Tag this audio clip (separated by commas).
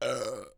eructation